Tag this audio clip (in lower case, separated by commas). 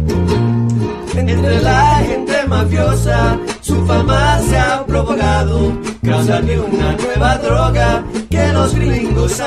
music